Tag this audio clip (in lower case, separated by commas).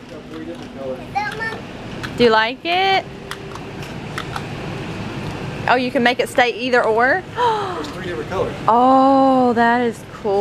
inside a large room or hall, speech, kid speaking